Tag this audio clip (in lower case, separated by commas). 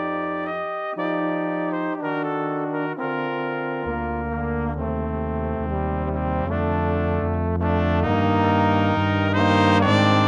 playing cornet